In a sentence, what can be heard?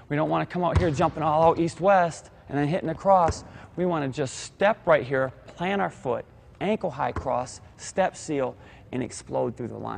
A man speaks as a ball bounces